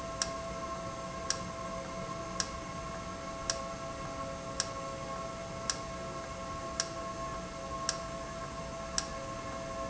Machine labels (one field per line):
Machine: valve